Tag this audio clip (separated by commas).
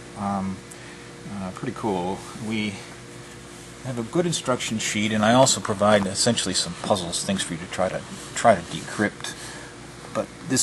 Boiling, Speech